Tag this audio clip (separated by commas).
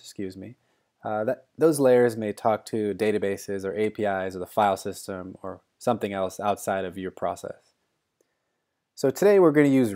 Speech